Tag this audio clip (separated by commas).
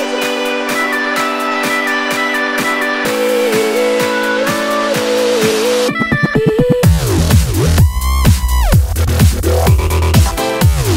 Music, Dubstep